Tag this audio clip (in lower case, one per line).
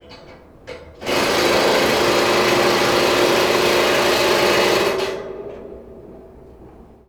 tools
drill
power tool
engine